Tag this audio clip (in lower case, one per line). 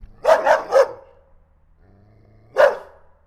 domestic animals
animal
bark
dog